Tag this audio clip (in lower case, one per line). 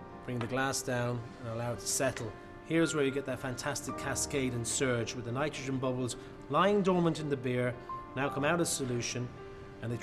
speech
music